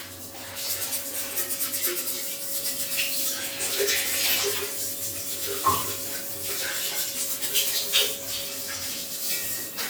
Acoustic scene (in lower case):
restroom